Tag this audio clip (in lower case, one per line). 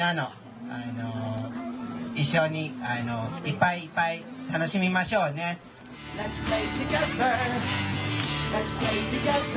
music
speech